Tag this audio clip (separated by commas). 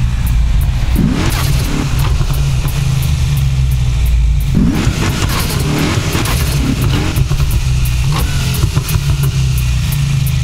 Music